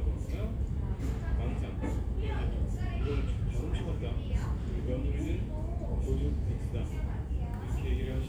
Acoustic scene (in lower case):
crowded indoor space